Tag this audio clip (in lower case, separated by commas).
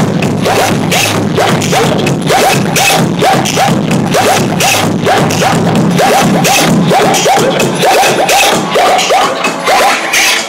beatboxing, music